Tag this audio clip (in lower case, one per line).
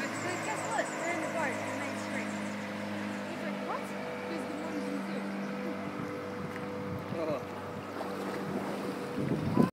speech
vehicle